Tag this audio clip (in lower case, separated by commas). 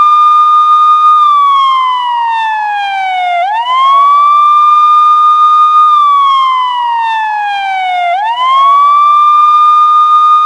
siren, police car (siren)